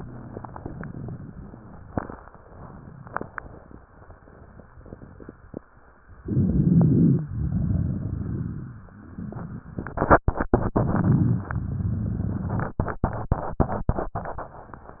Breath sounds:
6.22-7.25 s: inhalation
6.22-7.25 s: crackles
7.34-8.92 s: exhalation
7.34-8.92 s: crackles

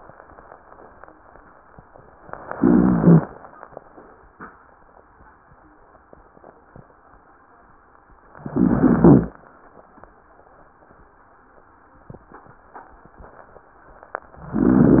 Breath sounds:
2.54-3.25 s: inhalation
2.54-3.25 s: rhonchi
8.54-9.34 s: inhalation
8.54-9.34 s: rhonchi
14.53-15.00 s: inhalation
14.53-15.00 s: rhonchi

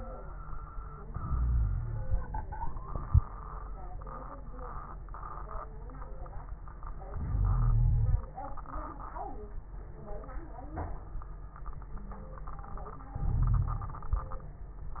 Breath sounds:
1.23-2.07 s: inhalation
1.23-2.07 s: wheeze
7.11-8.22 s: inhalation
7.11-8.22 s: wheeze
13.21-14.02 s: inhalation
13.21-14.02 s: wheeze

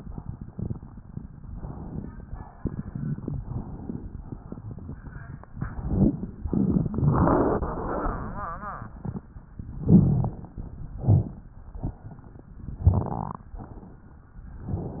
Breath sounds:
1.52-2.20 s: inhalation
2.22-2.68 s: exhalation
3.40-4.18 s: inhalation
4.18-4.92 s: exhalation
5.54-6.19 s: crackles
5.56-6.19 s: inhalation
6.45-6.91 s: exhalation
6.45-6.91 s: crackles
9.81-10.42 s: crackles
9.85-10.53 s: inhalation
10.99-11.50 s: exhalation
11.03-11.35 s: crackles
12.83-13.15 s: crackles
12.85-13.53 s: inhalation
13.59-14.32 s: exhalation

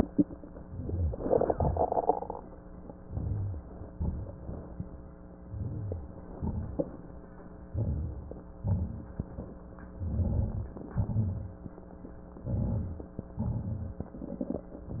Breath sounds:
0.60-1.88 s: exhalation
1.28-1.88 s: wheeze
3.09-3.91 s: crackles
3.11-3.93 s: inhalation
3.96-4.93 s: crackles
3.98-4.93 s: exhalation
5.38-6.36 s: crackles
5.41-6.36 s: inhalation
6.39-7.32 s: crackles
6.41-7.36 s: exhalation
7.62-8.55 s: crackles
7.62-8.57 s: inhalation
8.62-9.58 s: exhalation
8.64-9.58 s: crackles
9.88-10.81 s: crackles
9.92-10.87 s: inhalation
10.90-11.83 s: crackles
10.92-11.87 s: exhalation
12.37-13.30 s: crackles
12.38-13.34 s: inhalation
13.39-14.11 s: exhalation
14.12-14.72 s: inhalation
14.12-14.72 s: crackles
14.85-15.00 s: exhalation
14.85-15.00 s: crackles

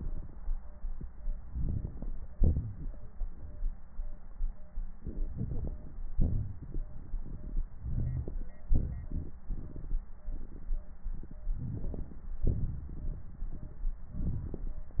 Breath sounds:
1.48-2.26 s: inhalation
1.48-2.26 s: crackles
2.33-2.99 s: exhalation
5.02-5.98 s: inhalation
5.02-5.98 s: crackles
6.16-7.66 s: exhalation
6.16-7.66 s: crackles
7.82-8.56 s: inhalation
7.82-8.56 s: crackles
8.68-9.36 s: exhalation
8.68-9.36 s: crackles
11.59-12.27 s: inhalation
11.59-12.27 s: crackles
12.43-13.29 s: exhalation
12.43-13.29 s: crackles
14.15-14.90 s: inhalation
14.15-14.90 s: crackles

